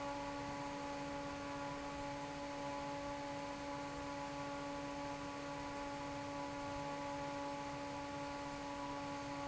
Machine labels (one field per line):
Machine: fan